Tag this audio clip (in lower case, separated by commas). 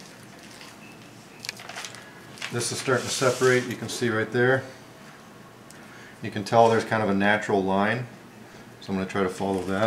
speech